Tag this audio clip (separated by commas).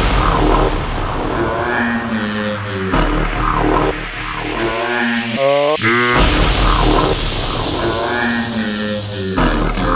Music